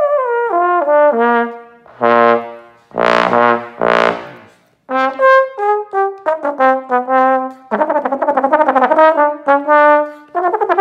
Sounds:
playing trombone

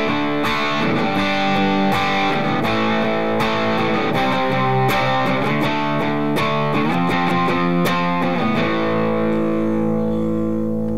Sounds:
music, plucked string instrument, guitar, strum, acoustic guitar, musical instrument

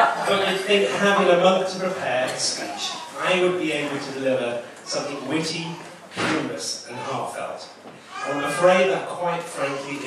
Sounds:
speech, monologue, male speech

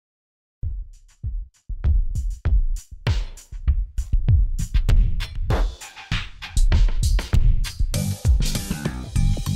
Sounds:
drum machine, music

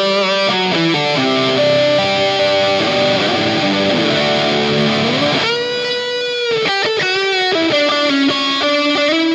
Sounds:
electric guitar, music

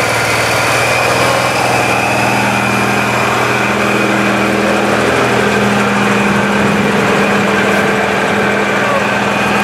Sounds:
truck, vehicle

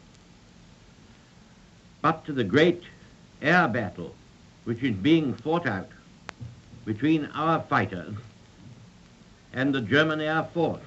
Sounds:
male speech, speech

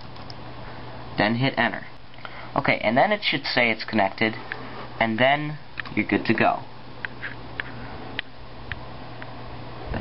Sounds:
speech, inside a small room

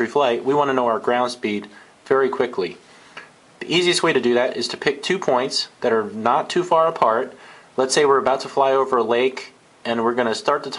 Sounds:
speech

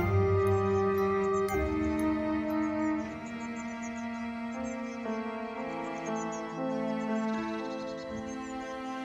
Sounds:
black capped chickadee calling

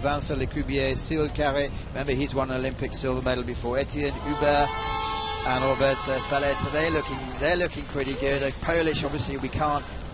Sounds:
canoe, water vehicle, vehicle, speech

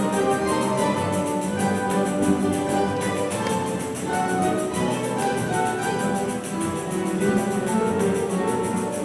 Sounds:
bass guitar, plucked string instrument, music, musical instrument, guitar, orchestra, acoustic guitar

